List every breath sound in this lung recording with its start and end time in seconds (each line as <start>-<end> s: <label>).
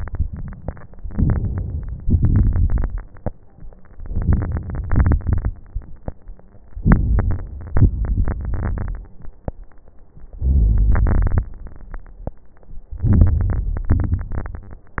1.04-2.01 s: inhalation
1.04-2.01 s: crackles
2.03-3.00 s: exhalation
2.03-3.00 s: crackles
3.88-4.84 s: inhalation
3.88-4.84 s: crackles
4.88-5.58 s: exhalation
4.88-5.58 s: crackles
6.78-7.77 s: inhalation
6.78-7.77 s: crackles
7.85-9.04 s: exhalation
7.85-9.04 s: crackles
10.30-11.49 s: inhalation
10.30-11.49 s: crackles
12.88-13.89 s: inhalation
12.88-13.89 s: crackles
13.91-15.00 s: exhalation
13.91-15.00 s: crackles